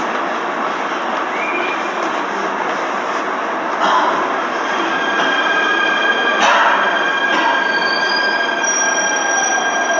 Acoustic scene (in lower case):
subway station